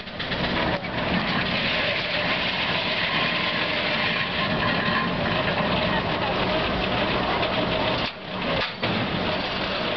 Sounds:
engine, speech

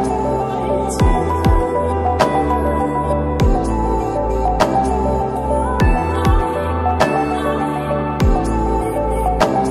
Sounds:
music

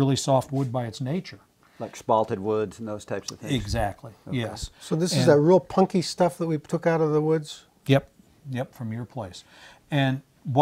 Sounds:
speech

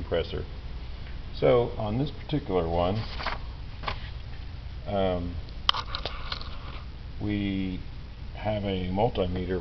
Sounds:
speech

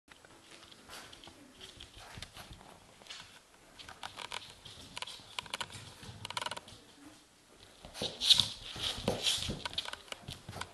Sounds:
inside a small room

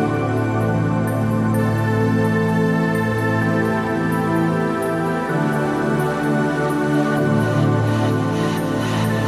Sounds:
new-age music, music

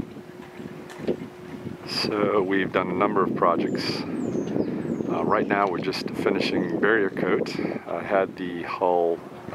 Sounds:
speech

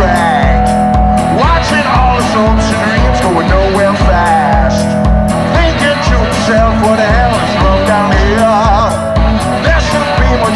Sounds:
music, steel guitar

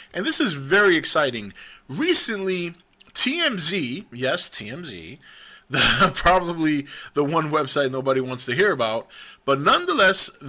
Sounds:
speech

